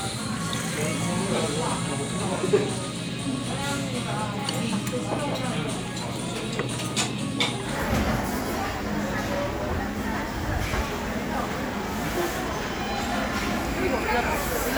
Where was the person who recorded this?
in a crowded indoor space